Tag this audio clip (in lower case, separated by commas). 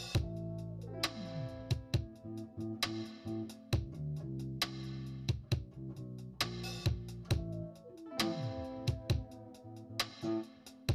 music